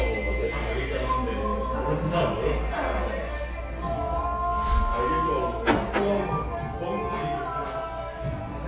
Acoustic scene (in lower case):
restaurant